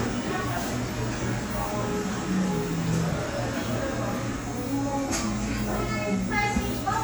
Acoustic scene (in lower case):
cafe